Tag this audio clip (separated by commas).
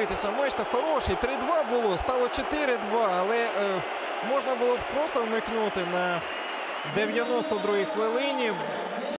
Speech